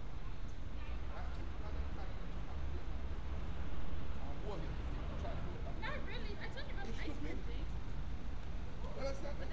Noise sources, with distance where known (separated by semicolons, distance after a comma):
background noise